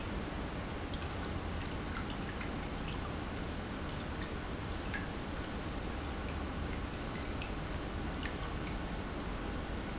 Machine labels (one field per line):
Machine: pump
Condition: normal